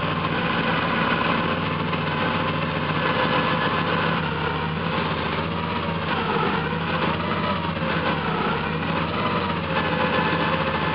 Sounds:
Vehicle, Car, Vibration

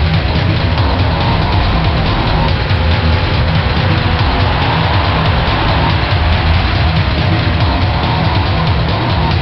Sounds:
Music, Vehicle

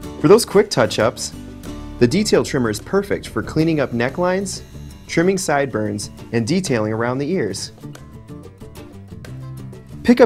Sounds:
Speech, Music

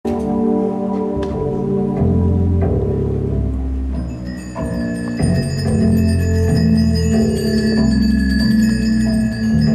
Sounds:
Marimba, Glockenspiel, Mallet percussion

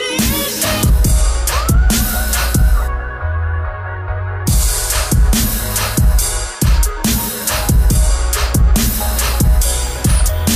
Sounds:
Hip hop music, Music

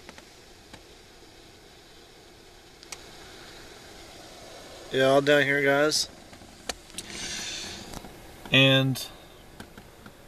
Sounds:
Speech

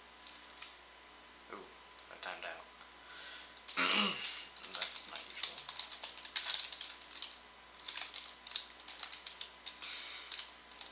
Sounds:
Speech, Computer keyboard

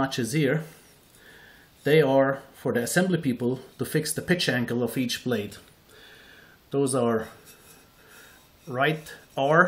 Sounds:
Speech

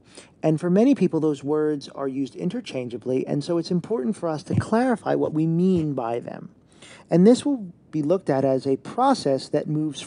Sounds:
Speech

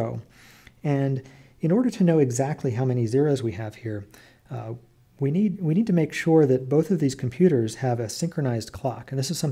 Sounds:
Speech

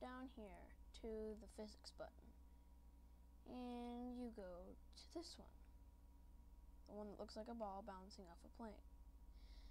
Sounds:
Speech

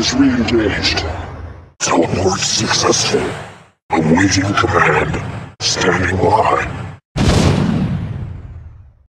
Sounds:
Sound effect, Speech

